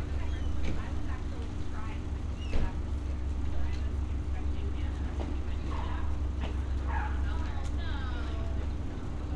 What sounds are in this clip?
person or small group talking, dog barking or whining